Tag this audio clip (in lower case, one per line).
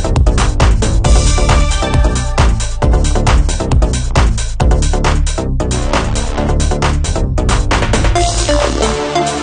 techno
music
drum machine
drum and bass
electronica